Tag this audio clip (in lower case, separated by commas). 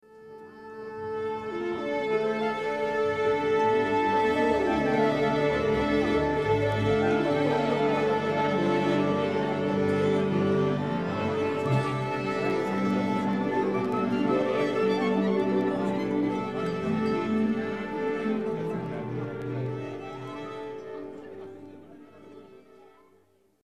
musical instrument, music